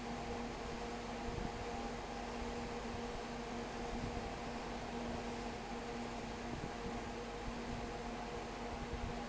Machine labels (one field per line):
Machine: fan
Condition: abnormal